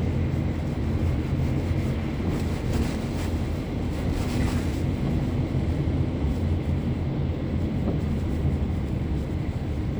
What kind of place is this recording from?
car